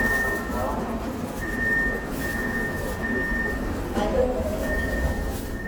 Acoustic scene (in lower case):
subway train